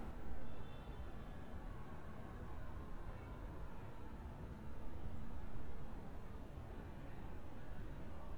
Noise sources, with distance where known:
car horn

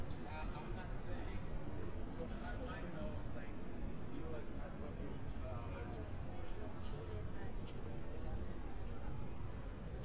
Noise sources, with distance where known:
person or small group talking, near

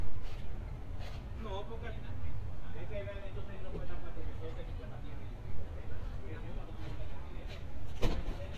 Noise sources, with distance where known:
person or small group talking, near

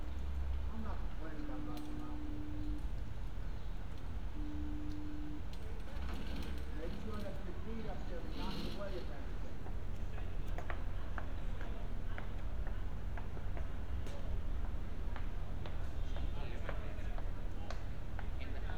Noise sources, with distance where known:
person or small group talking

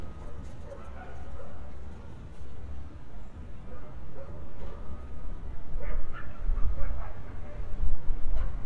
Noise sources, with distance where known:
reverse beeper, far; dog barking or whining, far

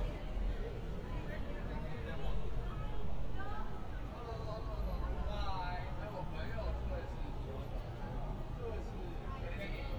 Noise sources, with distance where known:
unidentified human voice

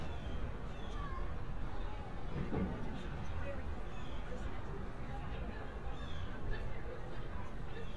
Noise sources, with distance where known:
unidentified human voice, far

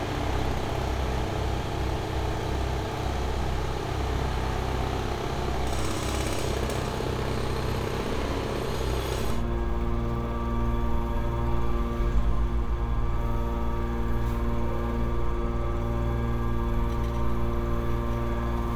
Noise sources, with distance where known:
jackhammer

